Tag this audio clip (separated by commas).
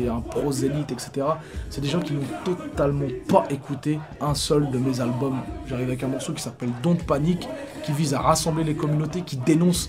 Speech, Music